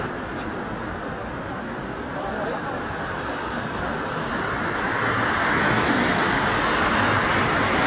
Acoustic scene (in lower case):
street